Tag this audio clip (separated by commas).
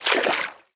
Water